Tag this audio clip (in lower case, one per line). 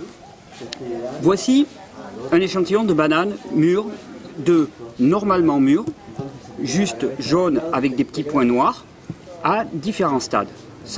speech